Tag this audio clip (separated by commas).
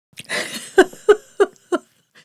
Laughter, Human voice, Giggle